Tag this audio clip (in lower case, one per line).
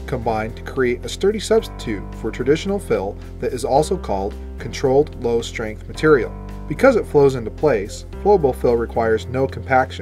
music
speech